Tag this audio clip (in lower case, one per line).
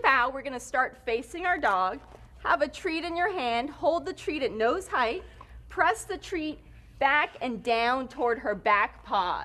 speech